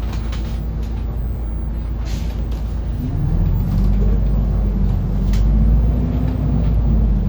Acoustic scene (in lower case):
bus